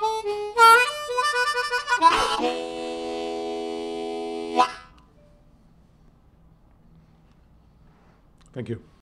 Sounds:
playing harmonica

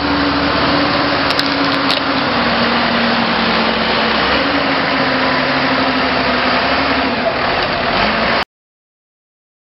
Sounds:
outside, rural or natural
vehicle

